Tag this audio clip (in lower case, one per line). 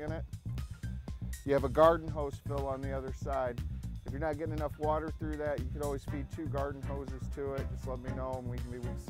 speech
music